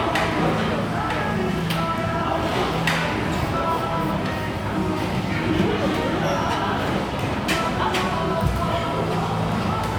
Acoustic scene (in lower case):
restaurant